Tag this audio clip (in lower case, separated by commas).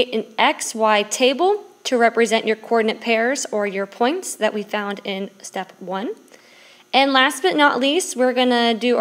speech